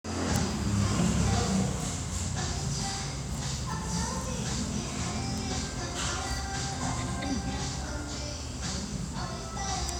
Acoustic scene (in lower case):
restaurant